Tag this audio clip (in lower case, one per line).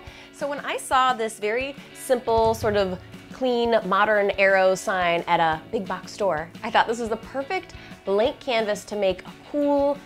music
speech